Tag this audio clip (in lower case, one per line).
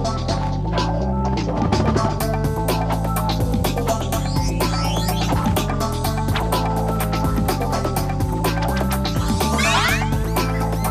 music